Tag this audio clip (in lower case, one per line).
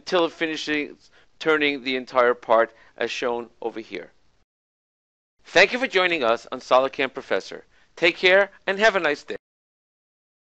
speech